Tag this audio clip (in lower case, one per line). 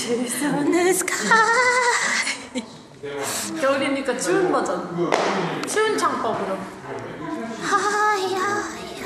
speech
female singing